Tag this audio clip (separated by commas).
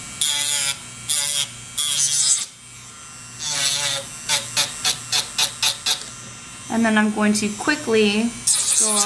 inside a small room, Speech